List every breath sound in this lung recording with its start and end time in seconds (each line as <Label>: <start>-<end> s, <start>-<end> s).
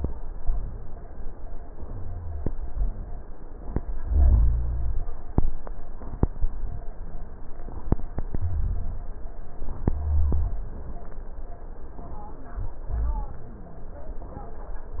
Rhonchi: 1.80-2.51 s, 4.00-5.11 s, 8.41-9.11 s, 9.85-10.55 s